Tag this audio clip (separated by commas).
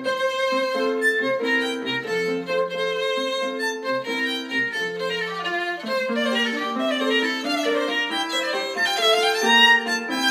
Musical instrument, fiddle, Music